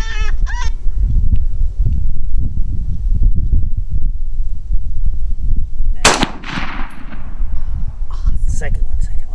A bird screeches before a gun shot is fired